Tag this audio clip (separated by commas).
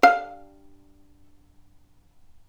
Musical instrument, Bowed string instrument, Music